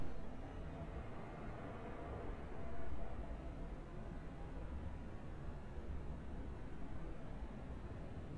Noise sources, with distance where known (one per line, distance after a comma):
background noise